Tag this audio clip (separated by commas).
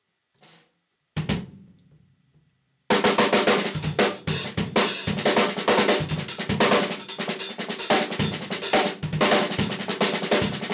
Rimshot, Cymbal, Snare drum, Drum kit, Percussion, Bass drum, Hi-hat, Musical instrument, Drum, Music